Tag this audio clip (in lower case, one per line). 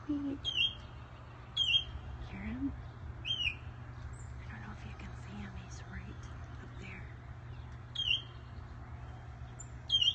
baltimore oriole calling